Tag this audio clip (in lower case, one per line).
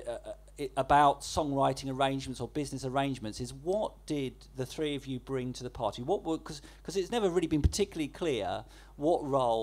speech